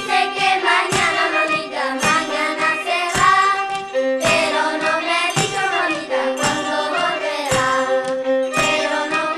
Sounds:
musical instrument, music, violin

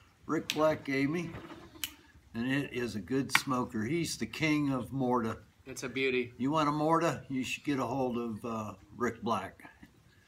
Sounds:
speech

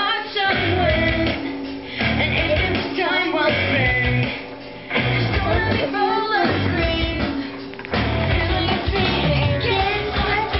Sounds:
music, female singing, child singing

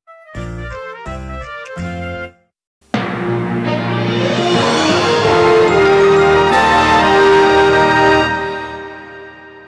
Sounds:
television, music

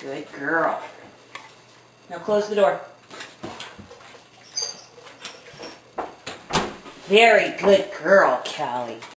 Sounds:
pets, dog, speech

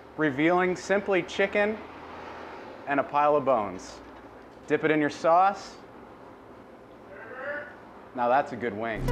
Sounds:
speech, music

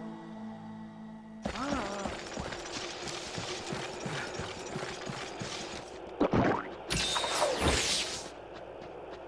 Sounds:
run

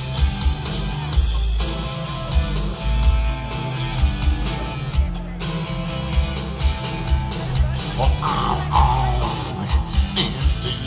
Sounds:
music, speech

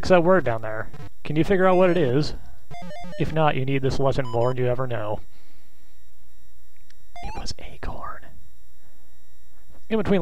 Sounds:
speech

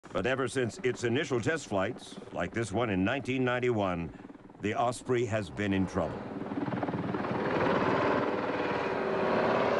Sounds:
vehicle, helicopter

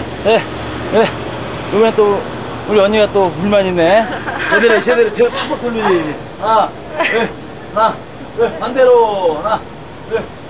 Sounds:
speech

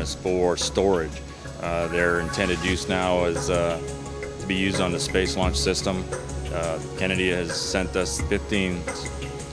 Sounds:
music, speech

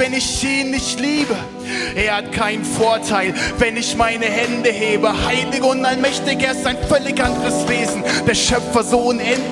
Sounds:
music

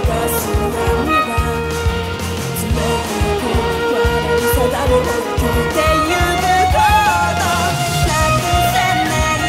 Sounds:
fiddle, musical instrument, music

